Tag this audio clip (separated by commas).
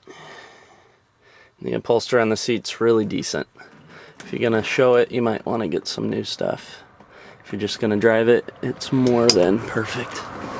Speech